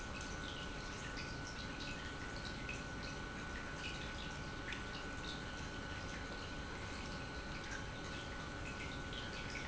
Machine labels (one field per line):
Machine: pump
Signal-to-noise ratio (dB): 6 dB